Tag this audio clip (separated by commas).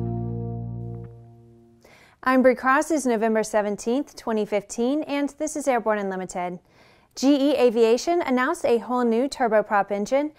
Music, Speech